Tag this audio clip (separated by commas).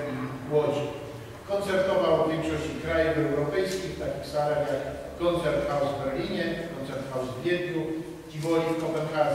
Speech